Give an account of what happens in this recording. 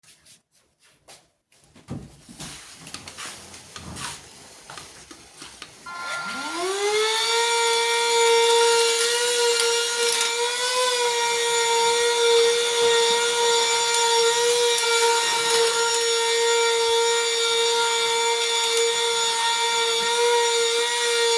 I start vacuum cleaner then walk while vacuuming